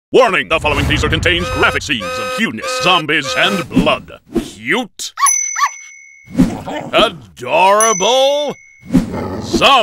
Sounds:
animal, dog, speech

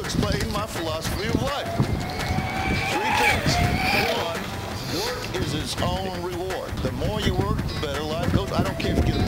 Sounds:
music, speech

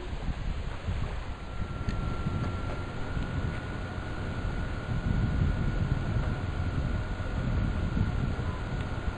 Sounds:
water vehicle, vehicle

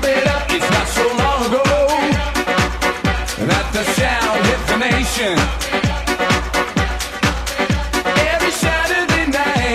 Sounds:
music

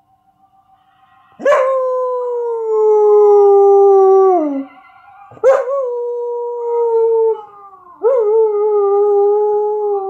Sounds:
dog howling

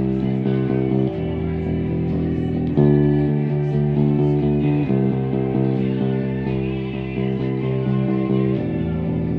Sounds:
guitar, music, bass guitar, musical instrument, plucked string instrument

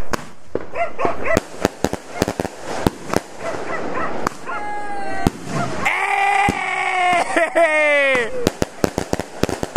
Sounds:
lighting firecrackers

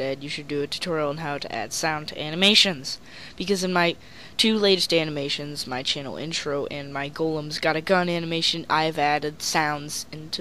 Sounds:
speech

